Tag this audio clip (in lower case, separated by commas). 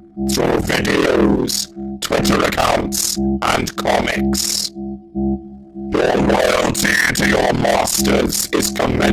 music, inside a small room, speech